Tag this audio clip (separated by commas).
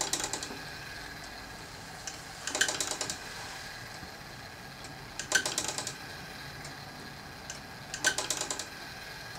Tick-tock